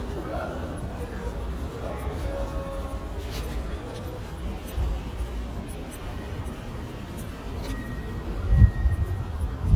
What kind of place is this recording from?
residential area